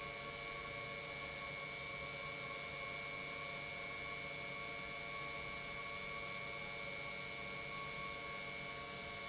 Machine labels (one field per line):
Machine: pump